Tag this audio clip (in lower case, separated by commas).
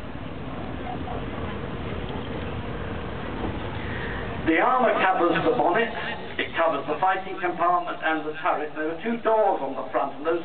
speech, vehicle